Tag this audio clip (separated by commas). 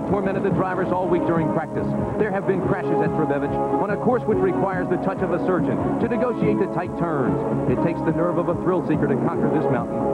Music, Speech